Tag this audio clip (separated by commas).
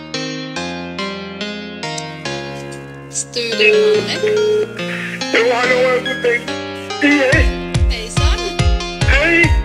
Music, Speech, Dubstep